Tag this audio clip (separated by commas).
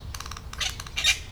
Animal, Bird, Wild animals, bird song